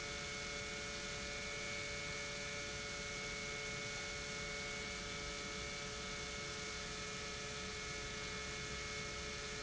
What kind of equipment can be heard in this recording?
pump